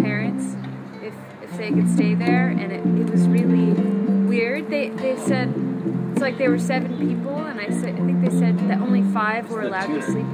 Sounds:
speech, music

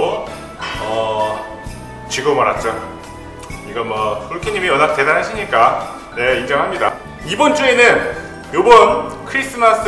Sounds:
speech, music

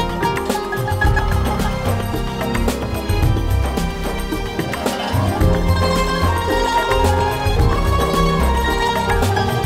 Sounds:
music

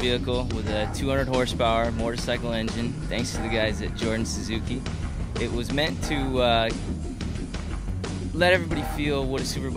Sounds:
music, speech

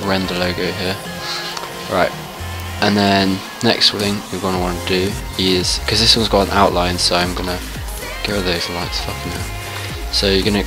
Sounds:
speech, music

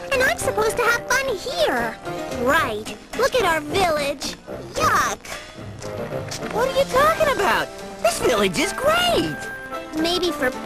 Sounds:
speech, music

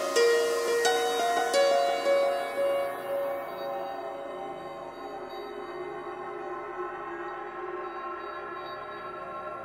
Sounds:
music, electronic music

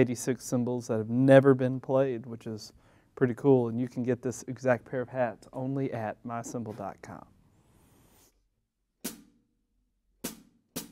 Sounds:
speech

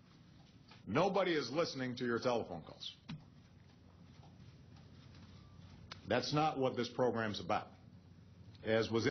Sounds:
speech

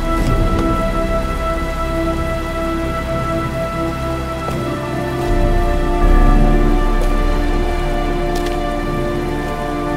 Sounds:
rain on surface, rain

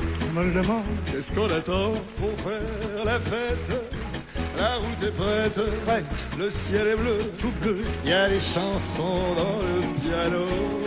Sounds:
music

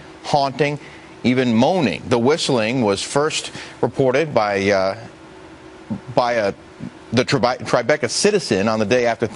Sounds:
speech

